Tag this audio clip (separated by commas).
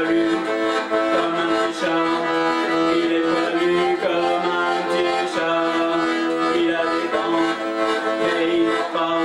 Music, Accordion, Musical instrument, playing accordion